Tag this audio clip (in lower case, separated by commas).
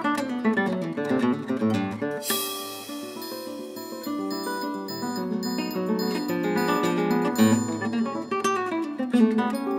electric guitar, percussion, musical instrument, music, guitar